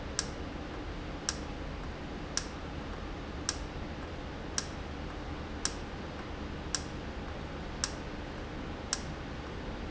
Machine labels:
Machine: valve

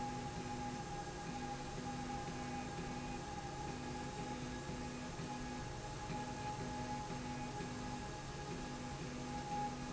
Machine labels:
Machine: slide rail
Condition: normal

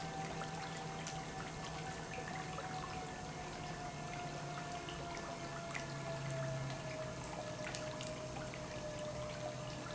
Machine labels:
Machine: pump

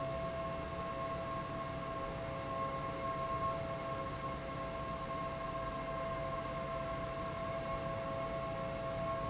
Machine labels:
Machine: fan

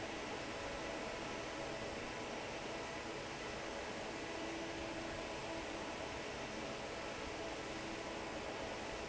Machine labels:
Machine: fan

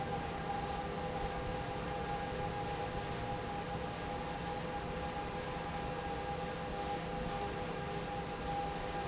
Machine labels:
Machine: fan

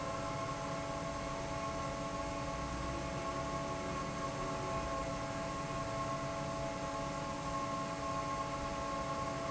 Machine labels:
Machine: fan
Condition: normal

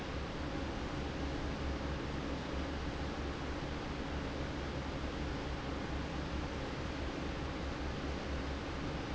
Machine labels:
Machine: fan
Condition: normal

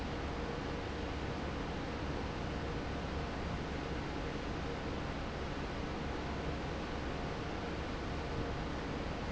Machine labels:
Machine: fan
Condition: normal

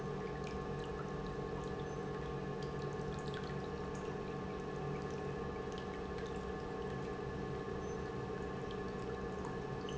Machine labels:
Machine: pump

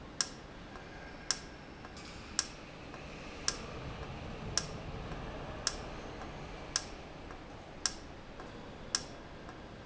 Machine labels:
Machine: valve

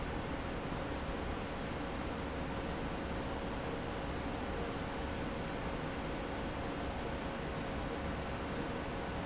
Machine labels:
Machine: fan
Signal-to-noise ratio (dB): -6 dB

